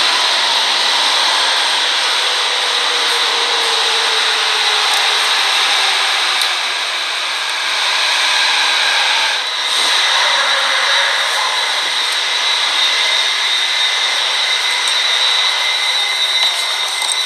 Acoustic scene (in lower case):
subway station